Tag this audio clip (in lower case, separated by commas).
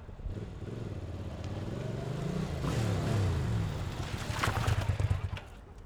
engine starting, motor vehicle (road), engine, motorcycle, vehicle